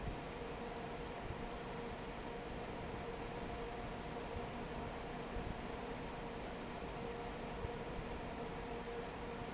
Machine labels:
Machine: fan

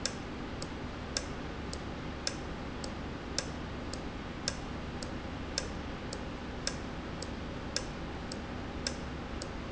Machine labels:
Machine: valve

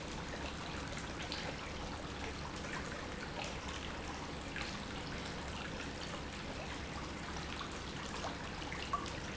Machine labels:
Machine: pump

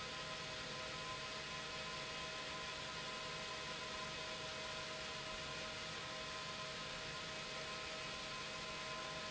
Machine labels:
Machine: pump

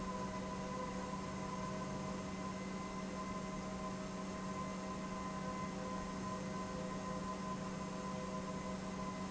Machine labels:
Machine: pump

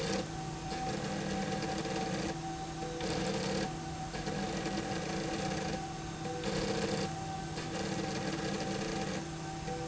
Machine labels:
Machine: slide rail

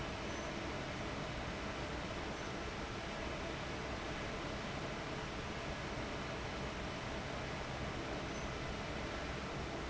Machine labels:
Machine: fan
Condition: abnormal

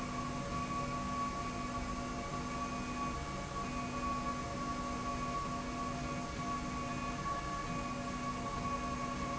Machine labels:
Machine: slide rail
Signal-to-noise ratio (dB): -6 dB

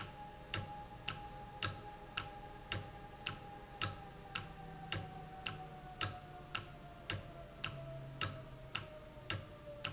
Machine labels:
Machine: valve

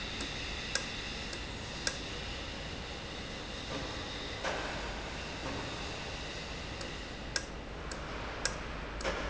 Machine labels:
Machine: valve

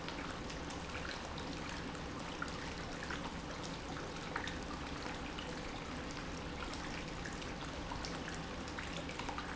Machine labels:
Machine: pump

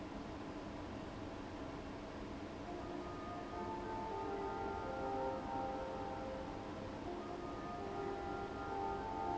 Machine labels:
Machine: fan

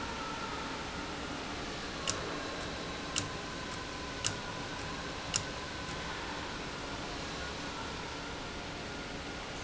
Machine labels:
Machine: valve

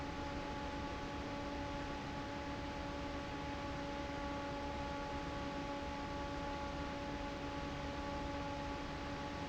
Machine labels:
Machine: fan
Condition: normal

